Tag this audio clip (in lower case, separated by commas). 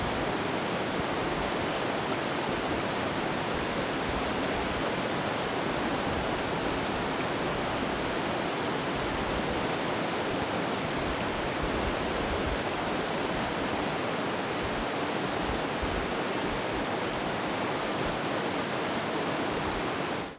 water, stream